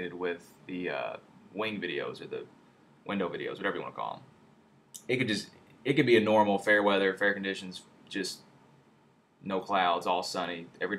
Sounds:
Speech

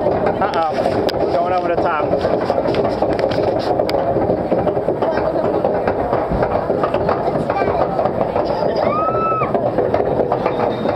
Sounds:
Speech

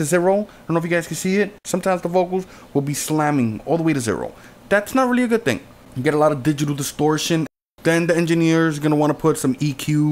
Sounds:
Speech

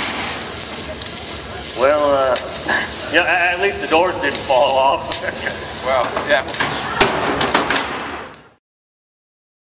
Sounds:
Speech

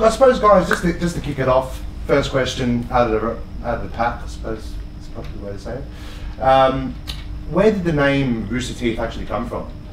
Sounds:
Speech

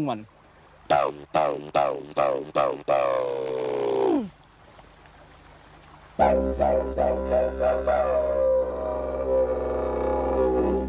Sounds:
playing didgeridoo

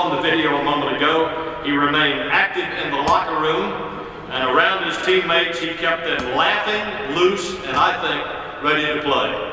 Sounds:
Speech, monologue, man speaking

